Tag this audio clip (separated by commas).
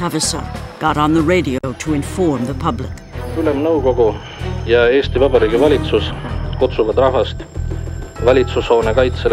Speech, Music